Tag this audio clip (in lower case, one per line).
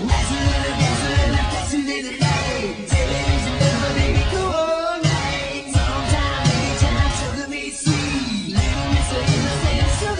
singing
music
vocal music